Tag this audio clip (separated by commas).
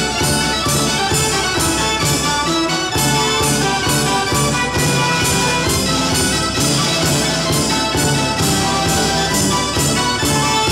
Music, Jingle (music)